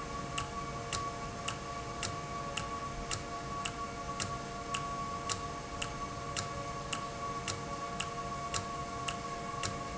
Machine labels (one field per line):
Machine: valve